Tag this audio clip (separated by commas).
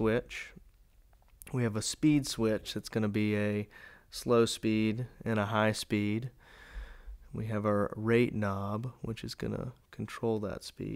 Speech